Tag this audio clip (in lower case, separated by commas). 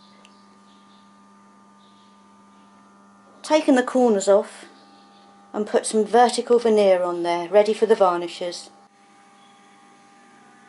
mains hum